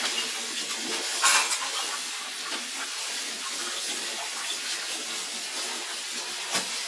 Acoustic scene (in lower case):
kitchen